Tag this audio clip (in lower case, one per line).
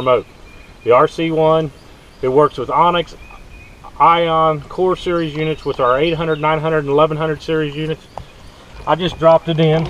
speech